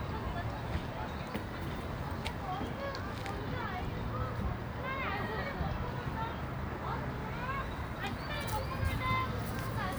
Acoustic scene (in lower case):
residential area